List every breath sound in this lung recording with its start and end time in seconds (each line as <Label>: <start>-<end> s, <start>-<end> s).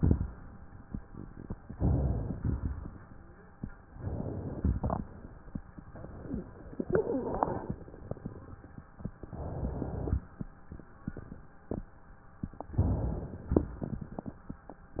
Inhalation: 1.71-2.35 s, 3.81-4.73 s, 5.89-6.83 s, 9.28-10.18 s, 12.69-13.58 s
Exhalation: 2.35-3.28 s, 4.75-5.60 s, 6.82-7.74 s, 10.15-11.05 s, 13.58-14.47 s
Wheeze: 6.14-6.52 s, 6.82-7.74 s